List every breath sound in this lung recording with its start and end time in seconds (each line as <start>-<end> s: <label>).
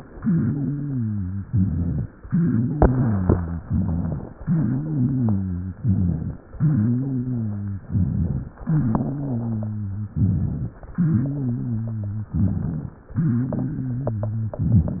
0.00-1.43 s: exhalation
0.00-1.43 s: wheeze
1.47-2.06 s: inhalation
1.47-2.06 s: rhonchi
2.19-3.62 s: exhalation
2.19-3.62 s: wheeze
3.67-4.35 s: inhalation
3.67-4.35 s: rhonchi
4.38-5.80 s: exhalation
4.38-5.80 s: wheeze
5.80-6.36 s: inhalation
5.80-6.36 s: rhonchi
6.44-7.87 s: exhalation
6.44-7.87 s: wheeze
7.91-8.56 s: inhalation
7.91-8.56 s: rhonchi
8.63-10.06 s: exhalation
8.63-10.06 s: wheeze
10.12-10.77 s: inhalation
10.12-10.77 s: rhonchi
10.92-12.35 s: exhalation
10.92-12.35 s: wheeze
12.37-13.02 s: inhalation
12.37-13.02 s: rhonchi
13.13-14.56 s: exhalation
13.13-14.56 s: wheeze
14.63-15.00 s: inhalation
14.63-15.00 s: rhonchi